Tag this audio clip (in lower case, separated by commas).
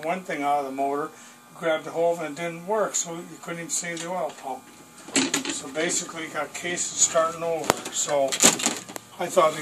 speech